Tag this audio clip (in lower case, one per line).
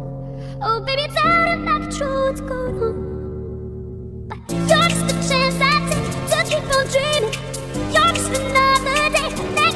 music